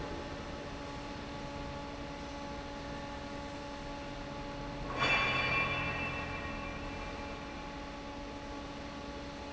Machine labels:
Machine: fan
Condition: normal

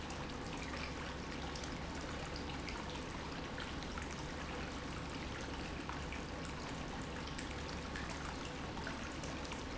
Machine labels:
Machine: pump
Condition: normal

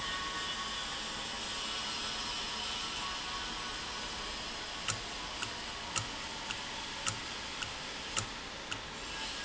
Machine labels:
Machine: valve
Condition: normal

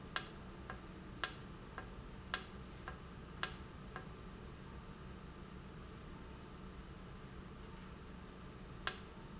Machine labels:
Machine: valve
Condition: normal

